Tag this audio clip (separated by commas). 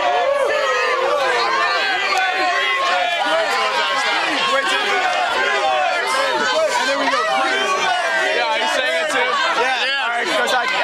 Speech